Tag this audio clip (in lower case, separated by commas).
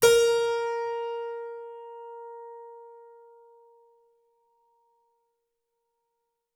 musical instrument, keyboard (musical), music